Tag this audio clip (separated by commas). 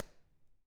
Clapping, Hands